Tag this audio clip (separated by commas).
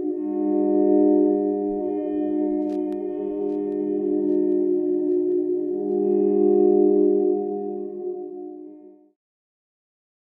Music